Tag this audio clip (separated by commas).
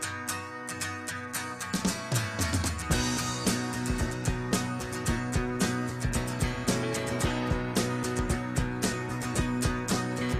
Music